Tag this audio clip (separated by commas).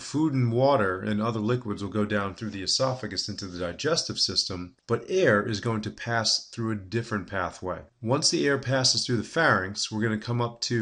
Speech